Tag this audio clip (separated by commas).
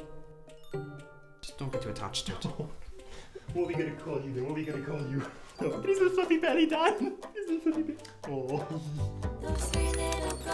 Speech, Music